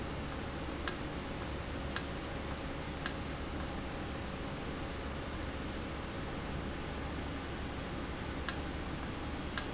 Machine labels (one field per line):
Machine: valve